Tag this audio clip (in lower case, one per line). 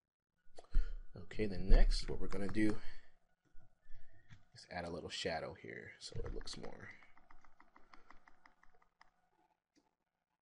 computer keyboard